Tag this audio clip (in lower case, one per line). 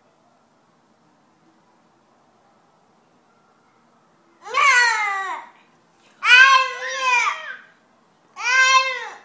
babbling
people babbling